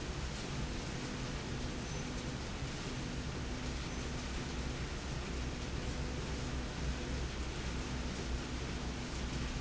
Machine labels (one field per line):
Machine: slide rail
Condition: normal